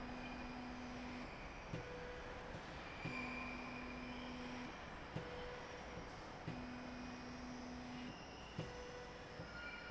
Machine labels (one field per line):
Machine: slide rail